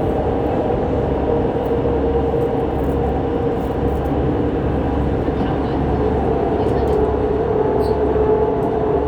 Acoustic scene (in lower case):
subway train